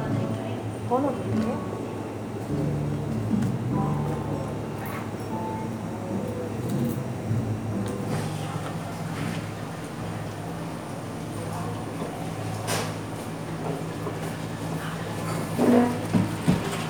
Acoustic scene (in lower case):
cafe